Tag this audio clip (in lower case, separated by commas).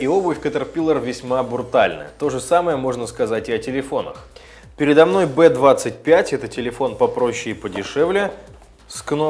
speech, music